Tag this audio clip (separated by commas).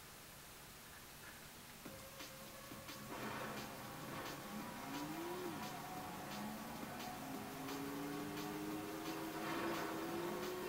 Car, Music